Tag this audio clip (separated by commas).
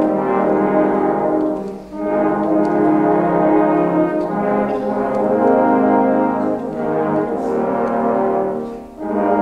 Brass instrument, Musical instrument, Music